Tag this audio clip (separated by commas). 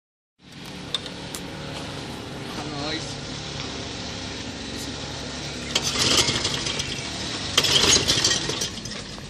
Lawn mower, Speech